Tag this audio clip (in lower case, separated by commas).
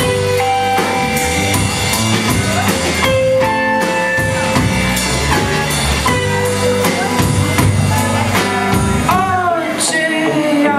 speech, music